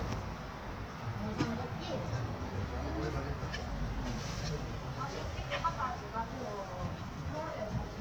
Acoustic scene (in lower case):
residential area